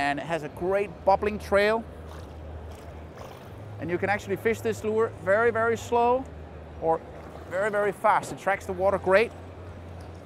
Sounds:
Speech

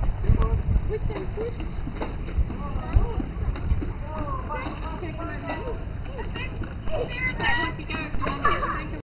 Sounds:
Speech, Clip-clop

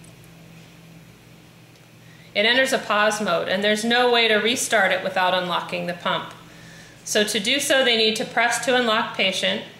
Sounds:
Speech

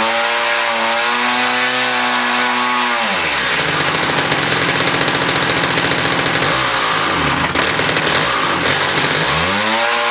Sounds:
Engine, Vehicle, vroom

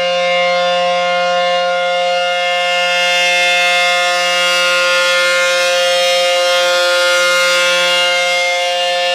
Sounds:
Civil defense siren, Siren

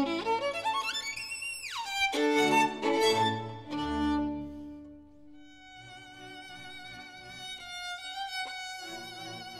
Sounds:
fiddle, Music, Musical instrument

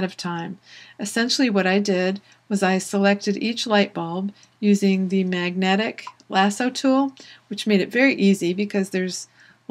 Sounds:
Speech

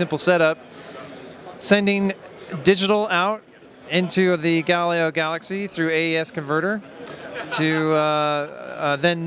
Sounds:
Speech

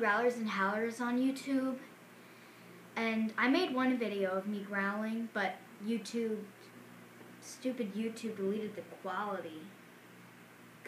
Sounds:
Speech

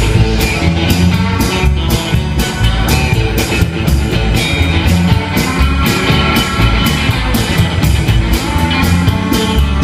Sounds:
Music, Pop music

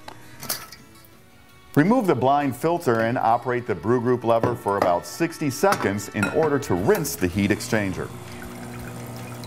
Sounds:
Pour, Speech, Music

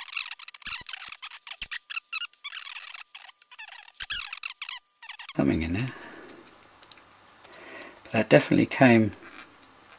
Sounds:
Speech

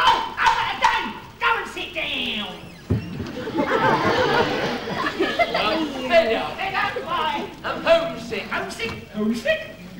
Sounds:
Chatter, Speech

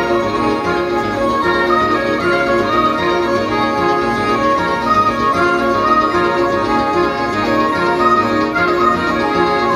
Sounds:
Background music, Music

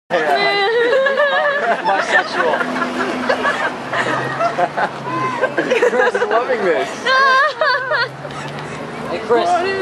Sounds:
Speech

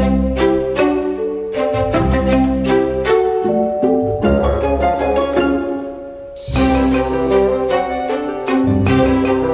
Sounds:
Classical music, String section

